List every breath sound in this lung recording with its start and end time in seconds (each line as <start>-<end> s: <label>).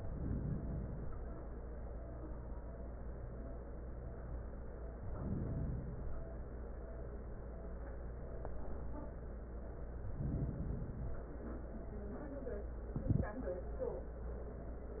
0.00-1.41 s: inhalation
4.92-6.08 s: inhalation
6.01-7.17 s: exhalation
9.89-11.20 s: inhalation